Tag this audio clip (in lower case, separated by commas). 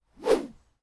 swoosh